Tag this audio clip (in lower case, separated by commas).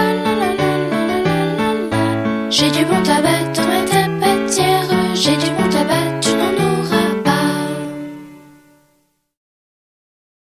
music